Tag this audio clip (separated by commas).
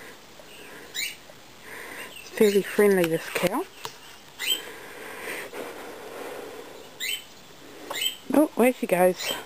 Animal, Speech